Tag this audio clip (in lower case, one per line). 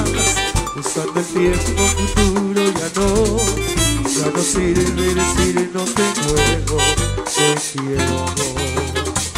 soundtrack music
music